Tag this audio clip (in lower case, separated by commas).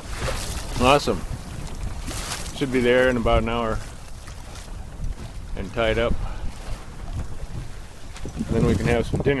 boat, vehicle, speech, sailboat